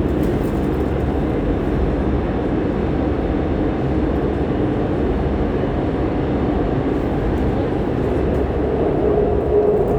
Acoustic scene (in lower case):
subway train